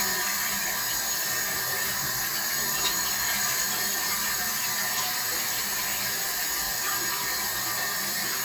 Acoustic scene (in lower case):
restroom